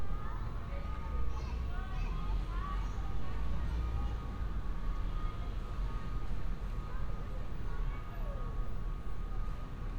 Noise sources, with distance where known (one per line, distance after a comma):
unidentified human voice, near